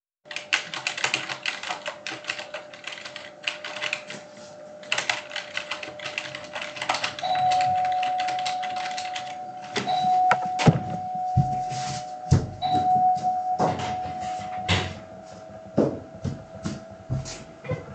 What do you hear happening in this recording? I'm working on the Computer and can be heard typing on the keyboard. Then the bell rings and I get up and walk to the Door to open it.